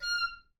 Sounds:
musical instrument, music, wind instrument

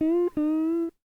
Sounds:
guitar, music, plucked string instrument, musical instrument

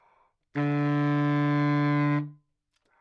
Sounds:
musical instrument, music, wind instrument

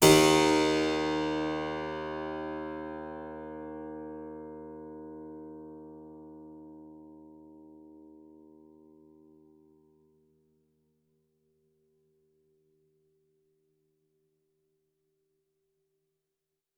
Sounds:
keyboard (musical), musical instrument, music

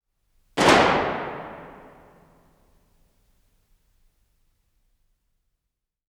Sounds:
gunshot, explosion

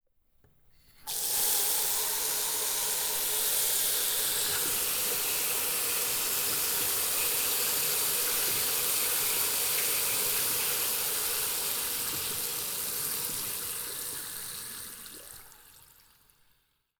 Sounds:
water tap, domestic sounds, sink (filling or washing)

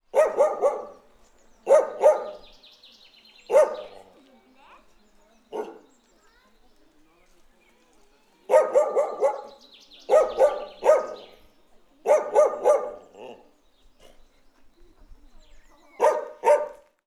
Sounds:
pets, bark, animal, dog

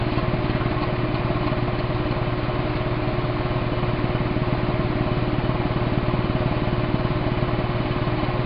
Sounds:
aircraft, vehicle, engine

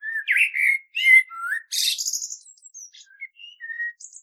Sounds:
bird, animal, wild animals

